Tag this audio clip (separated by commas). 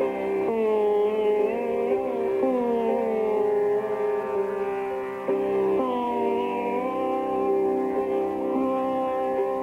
Music